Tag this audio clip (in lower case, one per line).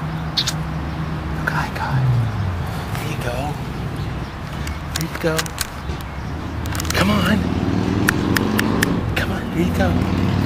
speech